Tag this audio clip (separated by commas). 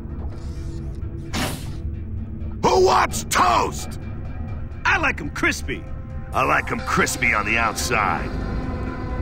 Music, Speech